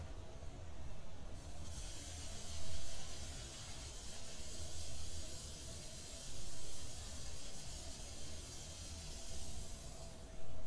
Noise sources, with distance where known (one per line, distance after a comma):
background noise